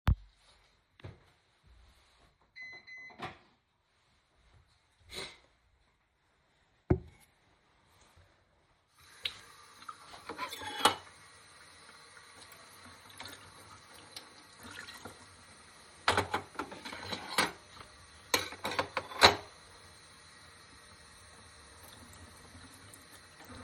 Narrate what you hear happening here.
The Coffeemaker went out on my way to the sink and washed up the remainig cutlery.